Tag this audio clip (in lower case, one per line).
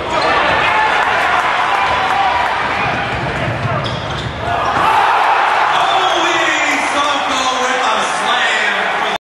speech